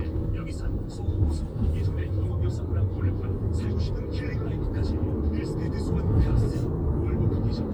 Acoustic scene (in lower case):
car